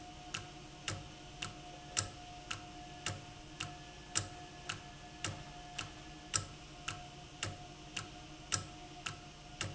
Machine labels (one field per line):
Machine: valve